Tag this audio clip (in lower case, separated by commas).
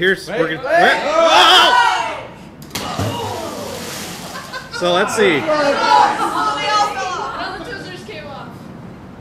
speech, outside, rural or natural